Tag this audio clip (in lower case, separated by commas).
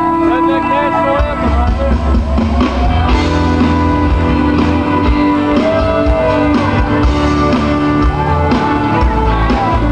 speech, music